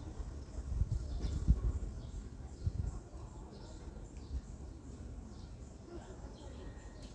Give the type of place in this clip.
residential area